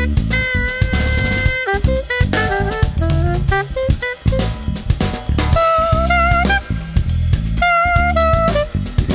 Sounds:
Percussion, Musical instrument, Drum kit, Jazz, Music, Drum

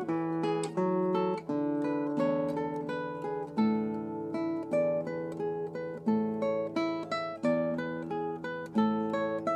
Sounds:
Musical instrument, Plucked string instrument, Music, Guitar

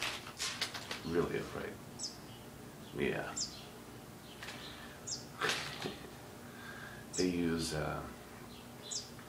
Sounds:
Speech

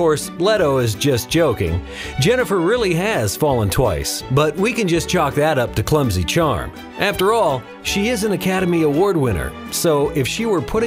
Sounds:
Speech, Music

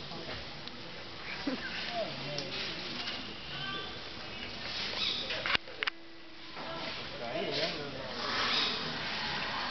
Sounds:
Speech, Bird, pets

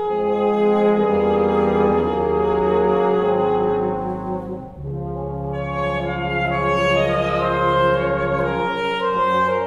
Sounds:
Musical instrument, Orchestra, Jazz, Wind instrument, Music, Saxophone, Brass instrument

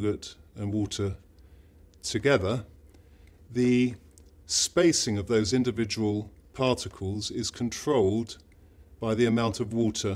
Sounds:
Speech

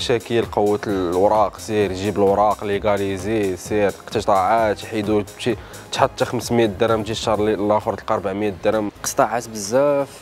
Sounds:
Music, Speech

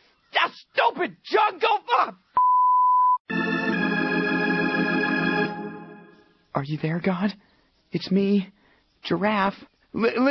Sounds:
Music, Speech

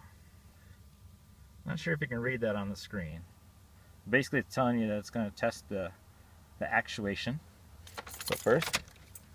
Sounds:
Speech, inside a small room

